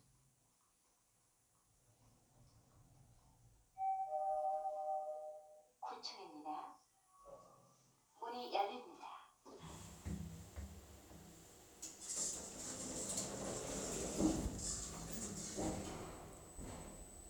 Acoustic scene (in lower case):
elevator